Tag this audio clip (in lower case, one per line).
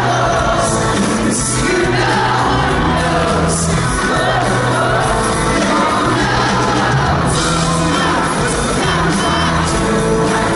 music
choir
male singing